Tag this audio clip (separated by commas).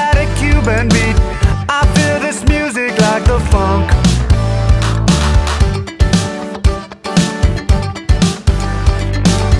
Music